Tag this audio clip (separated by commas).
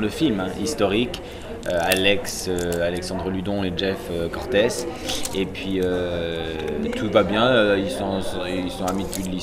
Speech